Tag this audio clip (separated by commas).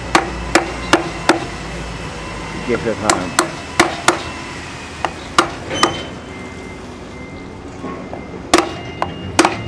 Speech, Vehicle